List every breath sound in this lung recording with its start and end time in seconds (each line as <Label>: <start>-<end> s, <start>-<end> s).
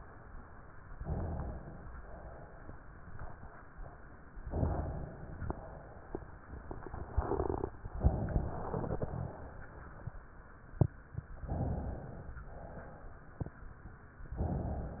Inhalation: 0.97-1.94 s, 4.44-5.38 s, 7.88-8.50 s, 11.49-12.40 s
Exhalation: 1.92-2.89 s, 5.40-6.35 s, 8.49-9.57 s, 12.44-13.35 s